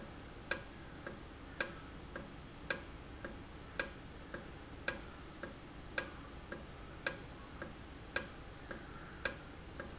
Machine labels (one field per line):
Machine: valve